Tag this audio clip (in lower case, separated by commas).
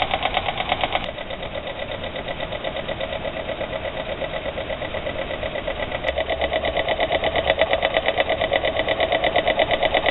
engine, idling